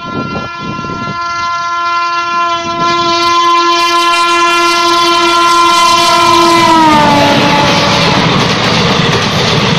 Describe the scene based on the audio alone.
A train is moving fast as it blows its horn